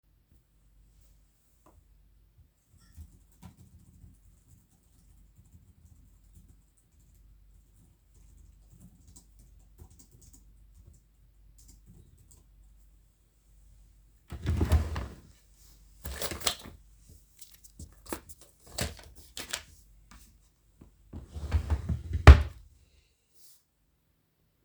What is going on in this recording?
I sat on the sofa and typed on my laptop. Then, I opened the drawer next to me without standing up, searched for something and subsequently closed it